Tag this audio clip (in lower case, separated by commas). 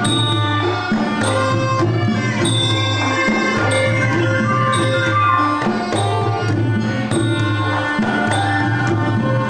music, classical music